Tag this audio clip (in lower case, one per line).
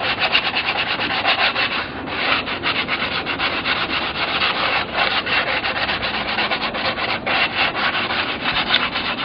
filing (rasp)
rub